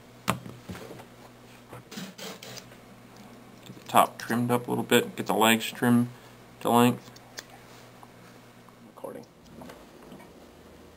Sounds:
Speech

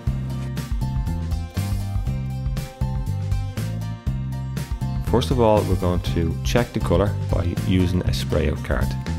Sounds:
Spray, Music, Speech

